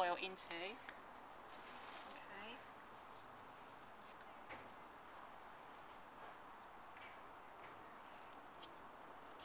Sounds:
speech
hands

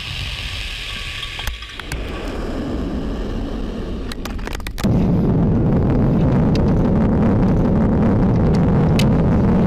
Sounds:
missile launch

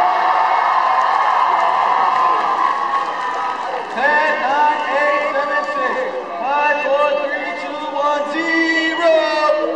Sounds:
speech

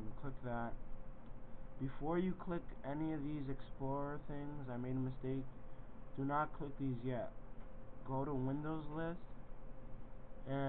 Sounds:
speech

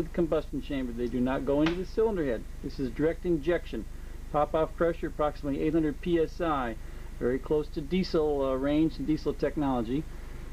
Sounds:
speech

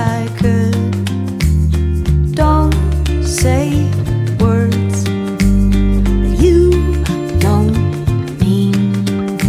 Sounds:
music

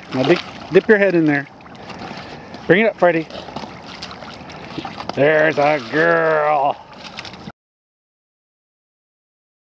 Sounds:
speech

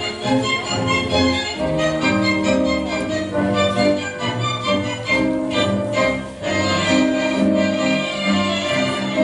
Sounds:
music

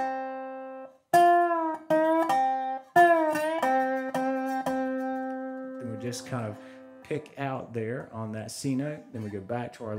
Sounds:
playing steel guitar

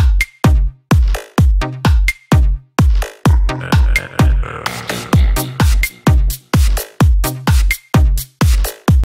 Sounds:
electronica
dance music
electronic music
music

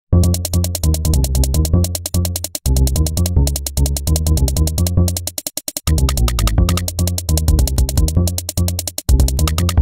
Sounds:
music

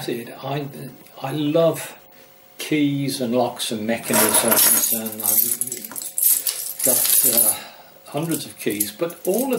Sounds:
speech
keys jangling

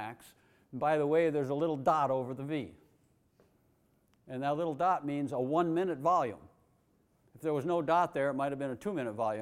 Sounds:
speech

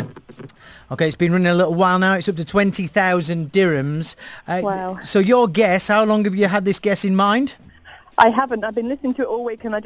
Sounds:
speech

